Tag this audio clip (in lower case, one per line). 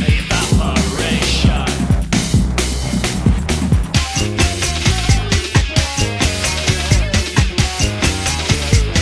rock music
disco
music